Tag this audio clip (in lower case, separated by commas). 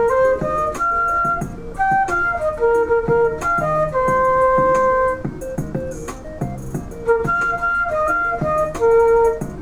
music, playing flute, flute